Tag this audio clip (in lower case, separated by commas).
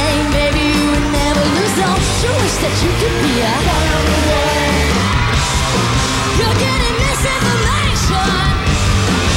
music, female singing